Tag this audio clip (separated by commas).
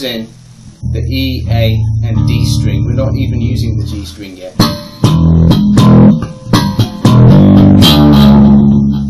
Speech, Music